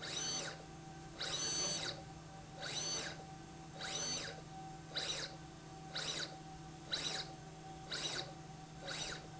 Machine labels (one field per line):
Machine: slide rail